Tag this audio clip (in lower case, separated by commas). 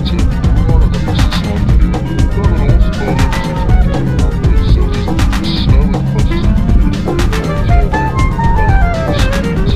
house music, music, speech